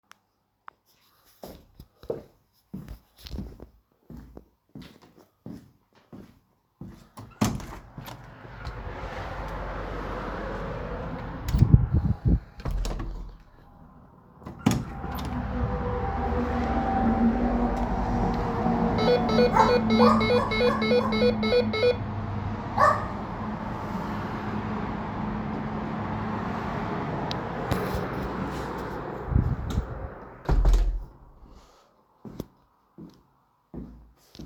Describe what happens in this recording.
I walked to the front door, opened and closed it, and rang a small bell.